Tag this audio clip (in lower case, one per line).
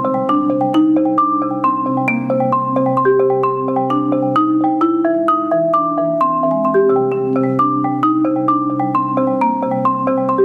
vibraphone
music
playing vibraphone